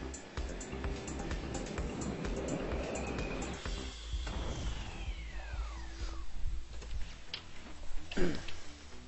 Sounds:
vehicle, music

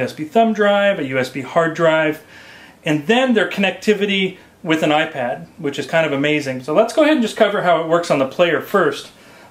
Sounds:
speech

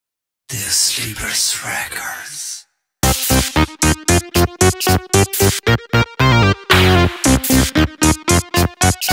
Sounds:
piano, musical instrument, keyboard (musical), music

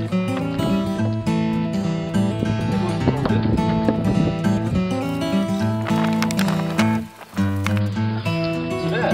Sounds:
speech, music

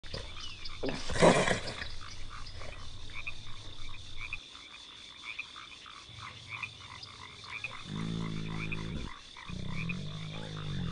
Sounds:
animal, horse

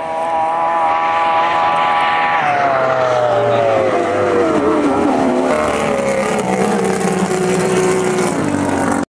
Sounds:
speech, boat, motorboat

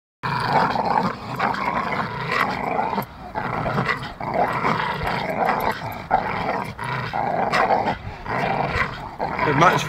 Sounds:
dog, animal, canids, pets, roar, speech

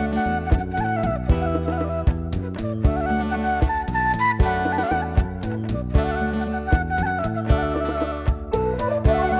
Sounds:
gospel music, music

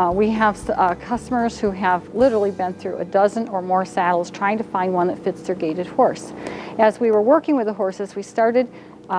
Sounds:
speech, music

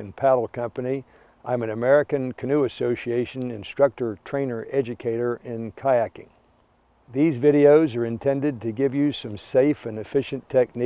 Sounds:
insect, cricket

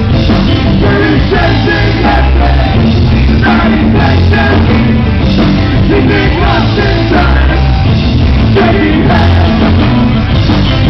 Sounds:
musical instrument, music

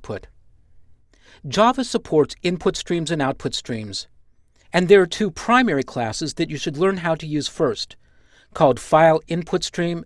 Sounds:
speech

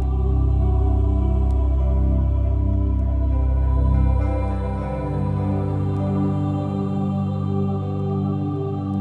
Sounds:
music

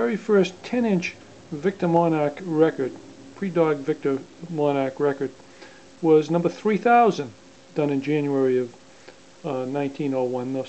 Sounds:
speech

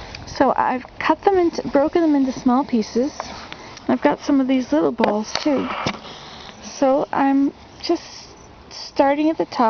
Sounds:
speech

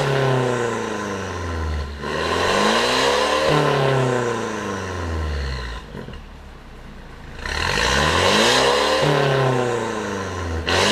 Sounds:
revving, car, engine, vehicle

